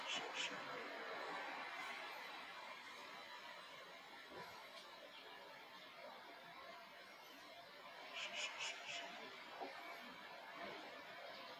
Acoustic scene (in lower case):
park